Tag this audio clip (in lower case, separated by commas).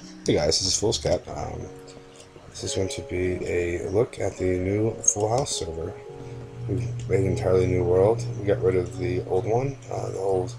music, speech